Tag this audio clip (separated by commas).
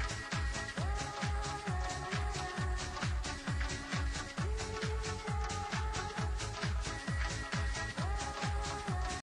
Music